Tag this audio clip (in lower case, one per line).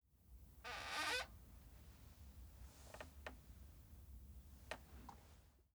squeak